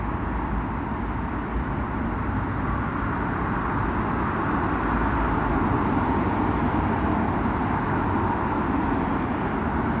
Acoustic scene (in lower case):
street